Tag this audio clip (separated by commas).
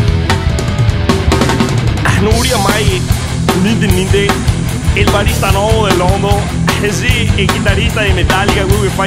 Music, Speech